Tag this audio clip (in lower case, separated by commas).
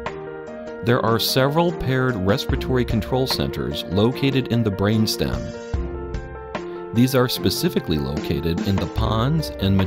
music, speech